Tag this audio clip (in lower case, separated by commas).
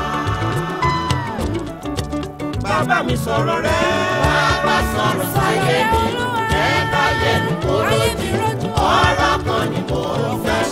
singing, music, choir